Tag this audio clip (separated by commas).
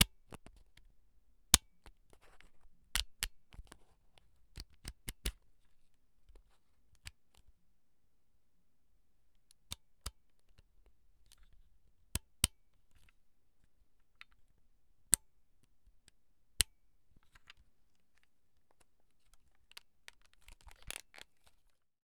Camera, Mechanisms